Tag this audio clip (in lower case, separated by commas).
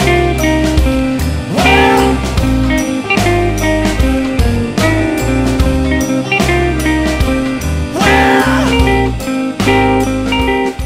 music